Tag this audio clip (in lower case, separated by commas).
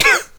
respiratory sounds, cough